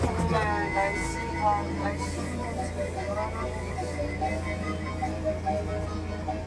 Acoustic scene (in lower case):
car